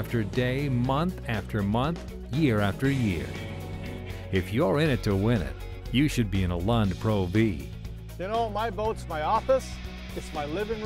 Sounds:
Speech, Music

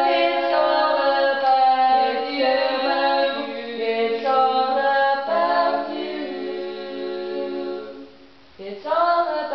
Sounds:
A capella

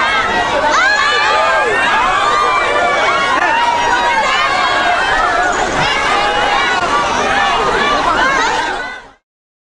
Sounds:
outside, urban or man-made, Speech

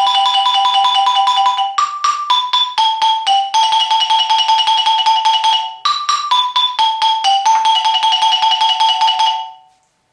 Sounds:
Glockenspiel, xylophone, Mallet percussion

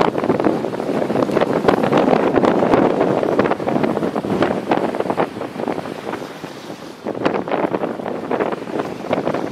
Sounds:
Boat, Sailboat, Vehicle

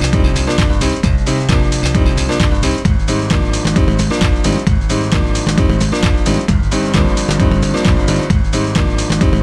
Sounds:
Music

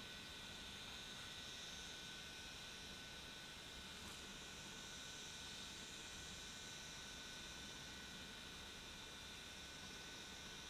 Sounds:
outside, rural or natural, Silence

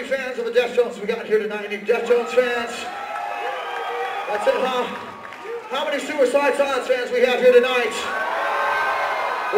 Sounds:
Speech

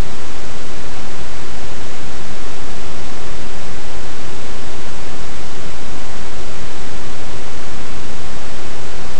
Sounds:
Pink noise

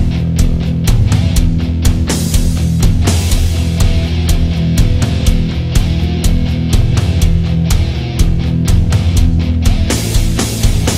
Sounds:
playing drum kit, Music, Drum kit, Drum

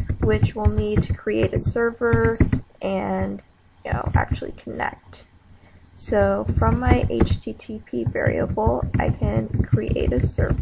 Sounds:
inside a small room, Speech

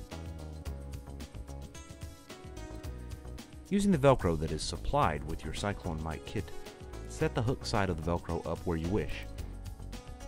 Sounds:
Music, Speech

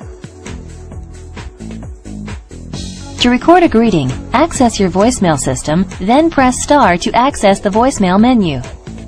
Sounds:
Speech, Music

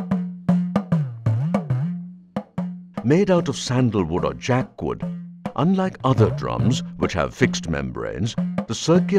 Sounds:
Percussion

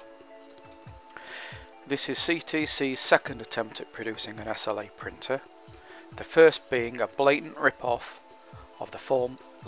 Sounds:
Music, Speech

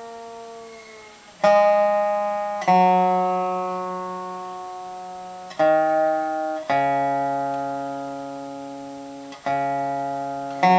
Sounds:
Guitar, Plucked string instrument, Musical instrument, Music

